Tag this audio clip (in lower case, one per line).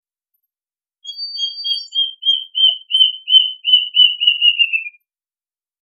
animal
bird
wild animals
bird vocalization